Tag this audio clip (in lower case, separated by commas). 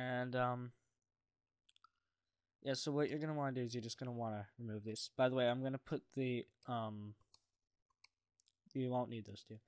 speech